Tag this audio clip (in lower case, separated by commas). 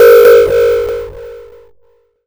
alarm